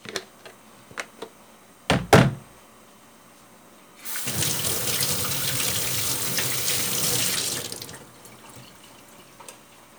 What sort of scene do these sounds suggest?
kitchen